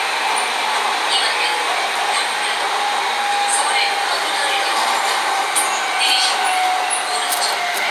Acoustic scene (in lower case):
subway train